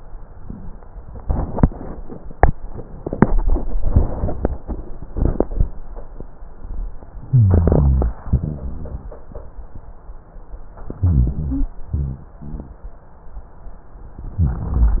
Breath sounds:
7.27-8.23 s: inhalation
7.27-8.23 s: rhonchi
8.29-9.26 s: exhalation
8.29-9.26 s: rhonchi
10.99-11.74 s: inhalation
10.99-11.74 s: rhonchi
11.92-12.81 s: exhalation
11.92-12.81 s: rhonchi
14.35-15.00 s: inhalation
14.35-15.00 s: rhonchi

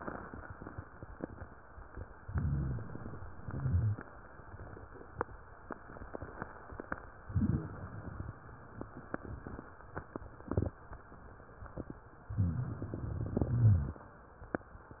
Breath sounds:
2.21-3.19 s: inhalation
2.24-2.89 s: rhonchi
3.31-4.10 s: exhalation
3.45-3.99 s: rhonchi
7.29-7.97 s: inhalation
7.95-8.55 s: exhalation
12.31-13.21 s: inhalation
13.21-14.11 s: exhalation
13.38-13.96 s: rhonchi

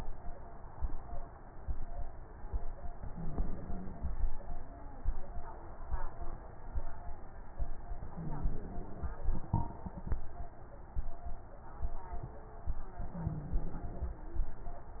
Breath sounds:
3.10-4.14 s: inhalation
3.10-4.14 s: wheeze
8.11-9.16 s: inhalation
8.11-9.16 s: wheeze
13.19-14.23 s: inhalation
13.19-14.23 s: wheeze

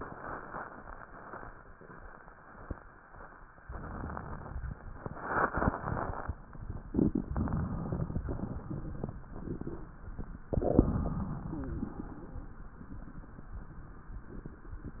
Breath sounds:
3.61-4.74 s: inhalation
7.31-8.25 s: inhalation
8.25-9.20 s: exhalation
10.52-11.46 s: inhalation
11.46-12.35 s: exhalation

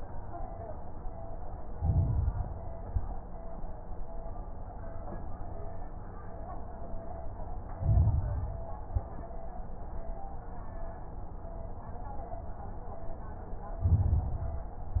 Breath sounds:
1.75-2.60 s: inhalation
1.75-2.60 s: crackles
2.73-3.13 s: exhalation
2.73-3.13 s: crackles
7.77-8.62 s: inhalation
7.77-8.62 s: crackles
8.82-9.21 s: exhalation
8.82-9.21 s: crackles
13.85-14.71 s: inhalation
13.85-14.71 s: crackles

